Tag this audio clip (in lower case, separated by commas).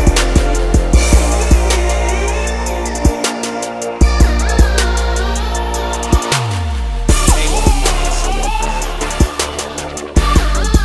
electronic music, dubstep, music